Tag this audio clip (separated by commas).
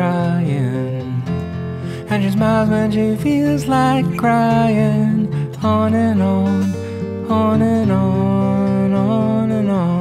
Music, Soul music